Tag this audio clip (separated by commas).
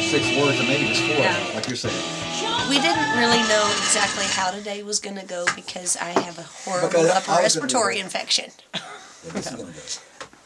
Speech, Music